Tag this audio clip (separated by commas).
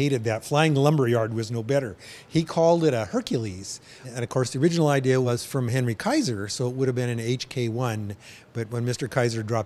Speech